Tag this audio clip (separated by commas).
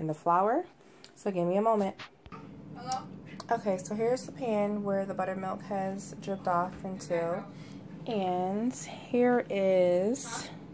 Speech